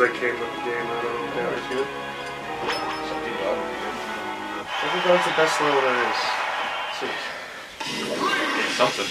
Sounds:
Music, Speech, Smash

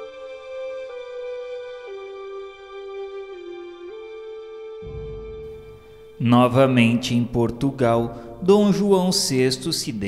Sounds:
Speech, Music

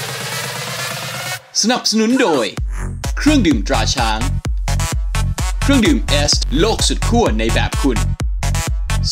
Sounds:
Soundtrack music, Exciting music, Music, Speech

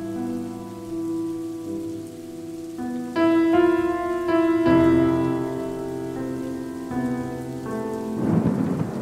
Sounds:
Music, Rain on surface

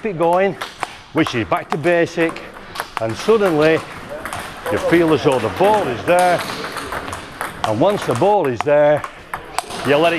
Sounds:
playing table tennis

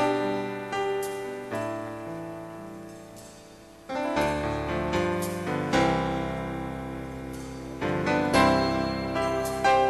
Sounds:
Music

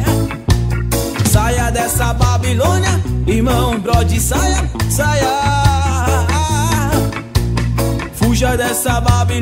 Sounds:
Pop music, Music

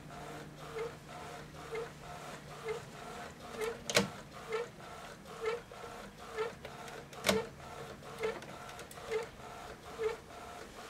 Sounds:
Printer

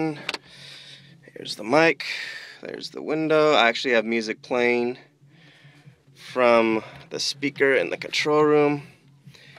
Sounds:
Speech

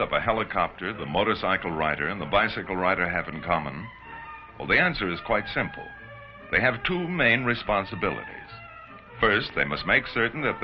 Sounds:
Music, Speech

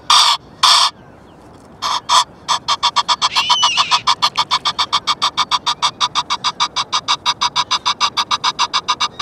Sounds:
goose honking

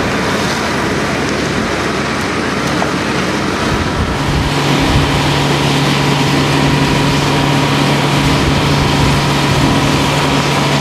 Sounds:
Speech, surf

